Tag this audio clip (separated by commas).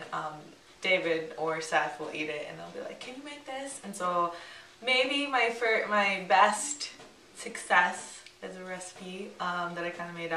Speech